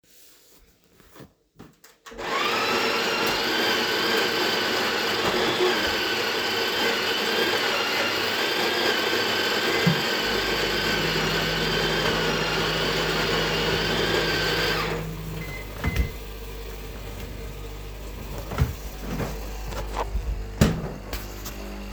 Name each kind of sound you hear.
coffee machine, microwave, wardrobe or drawer